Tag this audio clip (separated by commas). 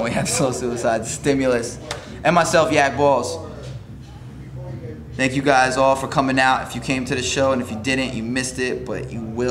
Speech